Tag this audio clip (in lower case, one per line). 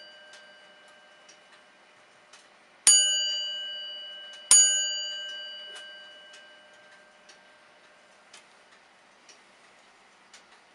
tick